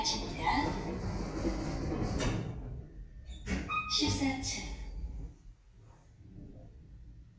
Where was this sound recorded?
in an elevator